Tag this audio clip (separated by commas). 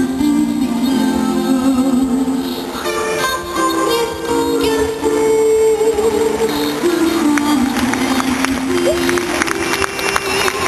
Music